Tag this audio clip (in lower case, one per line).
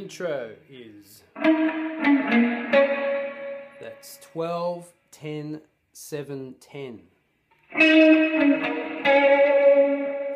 slide guitar
guitar
tapping (guitar technique)
musical instrument
speech